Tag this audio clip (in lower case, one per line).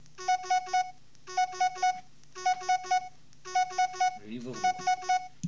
alarm
telephone